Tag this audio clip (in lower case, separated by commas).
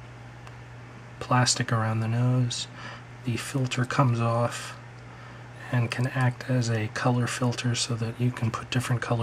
speech